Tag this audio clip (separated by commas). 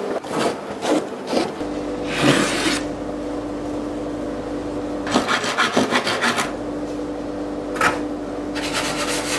Rub, Wood, Filing (rasp)